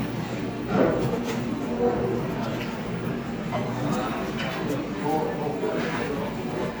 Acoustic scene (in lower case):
cafe